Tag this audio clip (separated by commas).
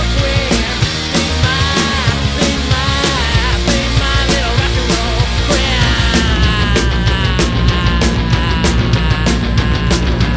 Music, Rock and roll